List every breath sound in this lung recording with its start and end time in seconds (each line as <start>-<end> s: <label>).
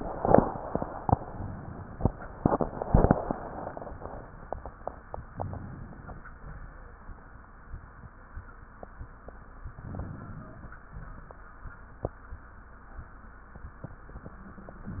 5.33-6.21 s: inhalation
6.38-6.72 s: exhalation
9.79-10.72 s: inhalation
10.93-11.31 s: exhalation